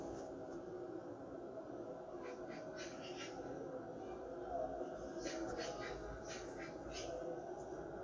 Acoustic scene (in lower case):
park